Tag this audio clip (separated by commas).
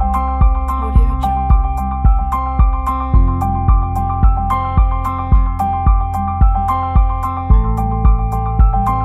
Soundtrack music, Background music, Music